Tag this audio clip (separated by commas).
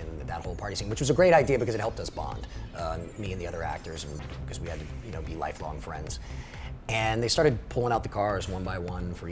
Music, Speech